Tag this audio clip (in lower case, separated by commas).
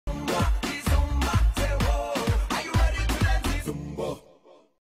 music